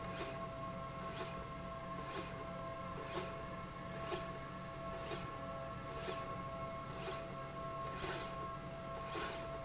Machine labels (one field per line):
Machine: slide rail